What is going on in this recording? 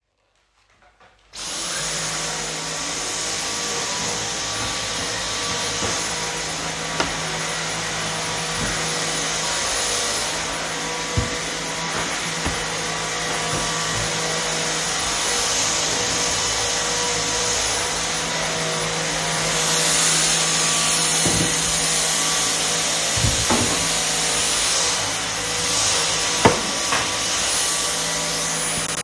I went to pick up my vacuum, turned it on, moved the dinning chair while doing the vacuum.